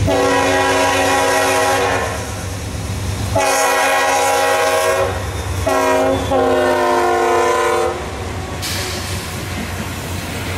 A train blows the horn as it passes